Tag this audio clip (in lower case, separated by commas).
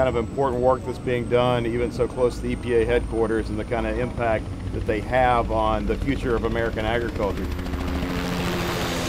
speech